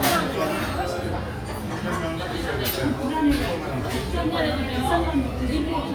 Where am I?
in a restaurant